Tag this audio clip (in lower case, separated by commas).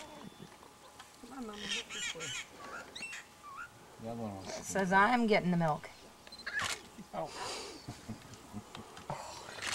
wild animals, animal, speech